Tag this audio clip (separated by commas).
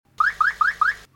Vehicle, Motor vehicle (road), Car